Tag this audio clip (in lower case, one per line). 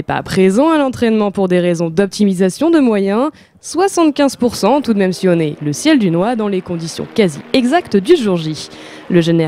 speech